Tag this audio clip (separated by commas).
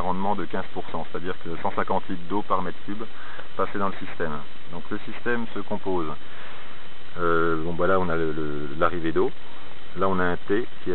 Speech